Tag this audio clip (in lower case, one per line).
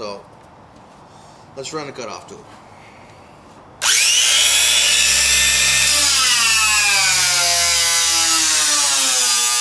tools
power tool